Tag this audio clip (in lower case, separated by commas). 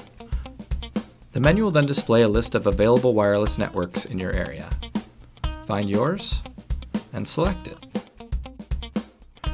speech, music